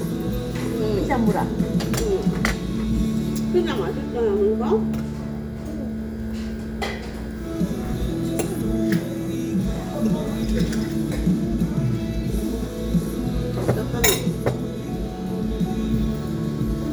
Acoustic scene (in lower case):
restaurant